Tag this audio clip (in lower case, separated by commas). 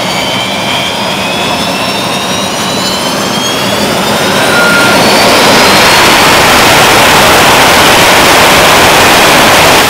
fixed-wing aircraft, vehicle, aircraft